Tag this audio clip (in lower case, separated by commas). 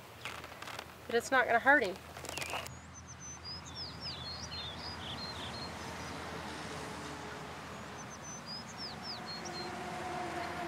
animal, speech, outside, rural or natural